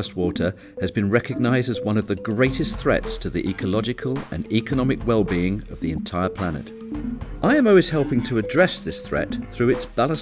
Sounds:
music, speech

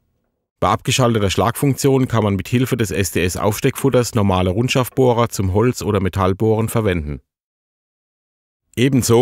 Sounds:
speech

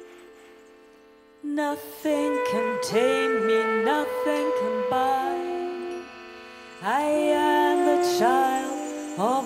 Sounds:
singing, musical instrument, music

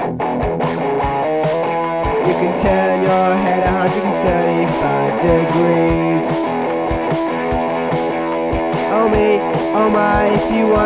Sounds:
music, rhythm and blues

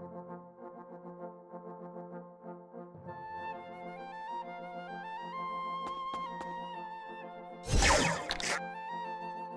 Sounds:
clarinet

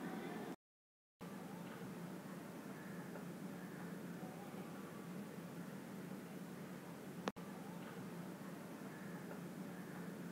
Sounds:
silence

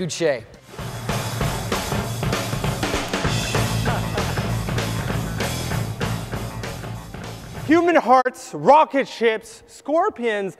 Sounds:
narration, speech, man speaking, music, speech synthesizer

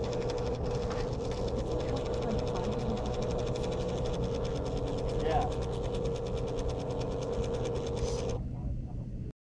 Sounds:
printer, speech

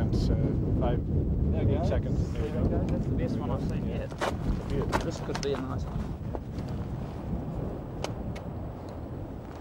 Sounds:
volcano explosion

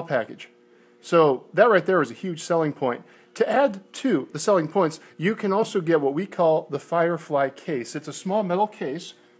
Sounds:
speech

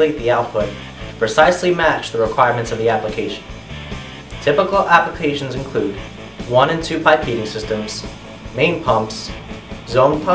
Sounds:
music, speech

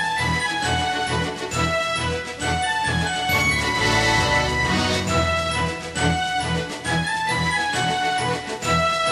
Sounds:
music

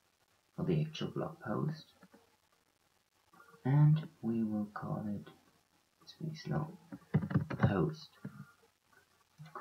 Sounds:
speech, inside a small room

